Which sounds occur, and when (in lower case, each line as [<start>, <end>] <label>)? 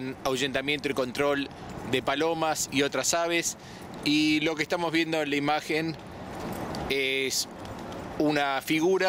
[0.00, 1.50] male speech
[0.00, 9.05] wind
[1.45, 1.69] generic impact sounds
[1.93, 3.55] male speech
[3.51, 4.04] breathing
[4.04, 5.99] male speech
[6.26, 6.88] generic impact sounds
[6.89, 7.43] male speech
[7.49, 8.19] generic impact sounds
[8.11, 9.05] male speech